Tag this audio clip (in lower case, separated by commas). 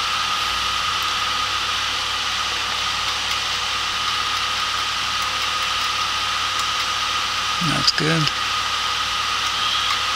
speech, vibration